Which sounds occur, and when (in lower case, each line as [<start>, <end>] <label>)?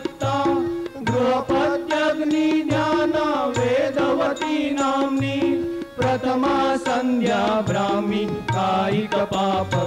[0.00, 9.85] music
[0.18, 0.66] chant
[0.99, 5.53] chant
[5.97, 9.85] chant